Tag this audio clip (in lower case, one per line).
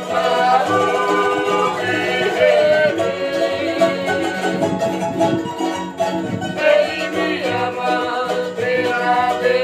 ukulele
music